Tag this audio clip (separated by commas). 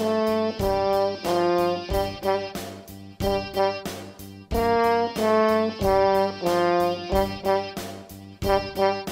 playing french horn